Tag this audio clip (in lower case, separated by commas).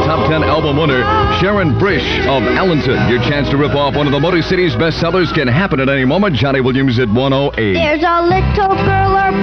music, speech